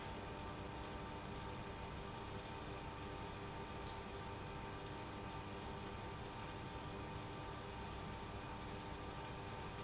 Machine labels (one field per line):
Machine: pump